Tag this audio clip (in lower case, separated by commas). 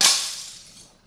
shatter, glass